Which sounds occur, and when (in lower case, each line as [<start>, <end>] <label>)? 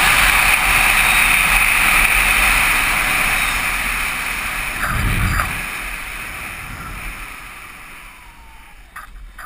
[0.00, 9.45] motorcycle
[0.00, 9.45] wind
[0.20, 0.81] wind noise (microphone)
[1.01, 1.30] squeal
[1.39, 2.36] wind noise (microphone)
[3.35, 3.52] squeal
[4.73, 5.60] wind noise (microphone)
[4.79, 5.00] generic impact sounds
[5.24, 5.41] generic impact sounds
[6.68, 7.27] wind noise (microphone)
[8.92, 9.08] generic impact sounds
[9.35, 9.45] generic impact sounds